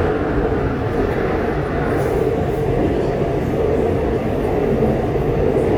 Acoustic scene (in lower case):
subway train